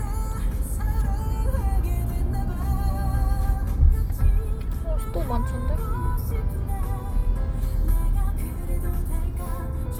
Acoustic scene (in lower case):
car